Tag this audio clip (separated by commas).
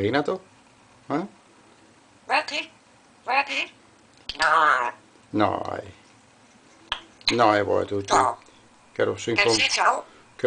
Speech, Domestic animals, Bird, inside a small room